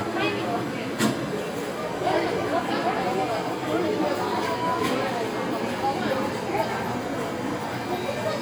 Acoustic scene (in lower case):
crowded indoor space